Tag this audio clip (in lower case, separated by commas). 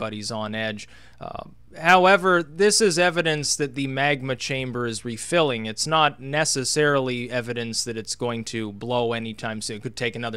speech